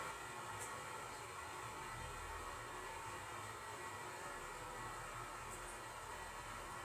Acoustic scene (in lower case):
restroom